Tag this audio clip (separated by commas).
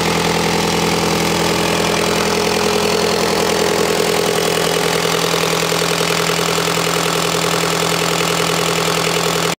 Engine, Idling, Medium engine (mid frequency)